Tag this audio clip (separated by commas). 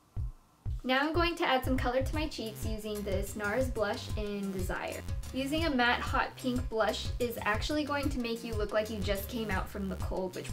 Music, Speech